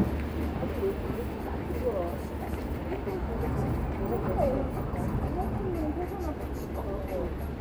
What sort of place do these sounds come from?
street